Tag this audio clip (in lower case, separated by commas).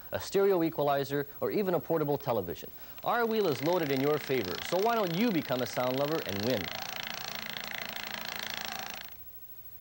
sound effect, clatter